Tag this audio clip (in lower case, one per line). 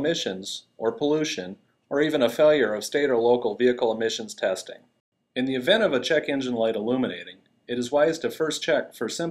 speech